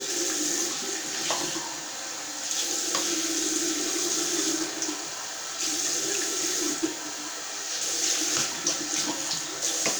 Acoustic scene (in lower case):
restroom